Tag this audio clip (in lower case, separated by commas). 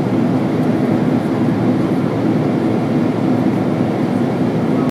vehicle, fixed-wing aircraft, aircraft